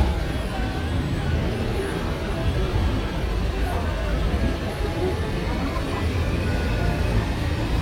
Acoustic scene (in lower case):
street